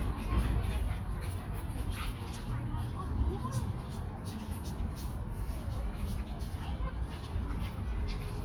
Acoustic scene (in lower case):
park